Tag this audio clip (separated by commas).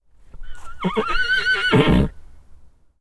livestock, Animal